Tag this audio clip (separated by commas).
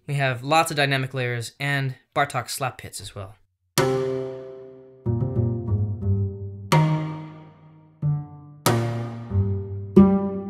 Speech, Keyboard (musical), Piano, Musical instrument, Music